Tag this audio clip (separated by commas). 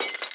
Glass, Shatter